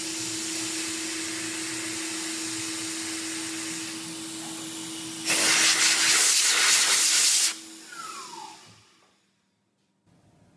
A drill is being used and air is blown